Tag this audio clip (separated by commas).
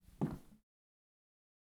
Wood, Walk